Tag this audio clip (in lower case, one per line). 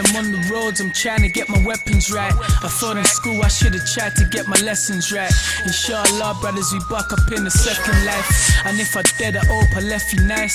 music